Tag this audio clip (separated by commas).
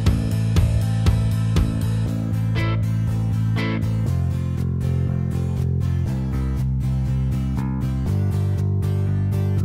Music